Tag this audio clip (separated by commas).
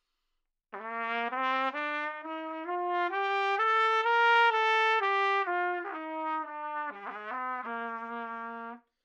Brass instrument, Musical instrument, Music, Trumpet